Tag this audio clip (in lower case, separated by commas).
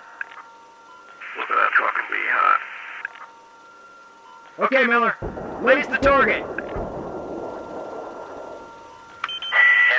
radio, speech